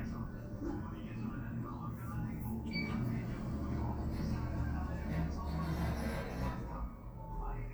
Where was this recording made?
in an elevator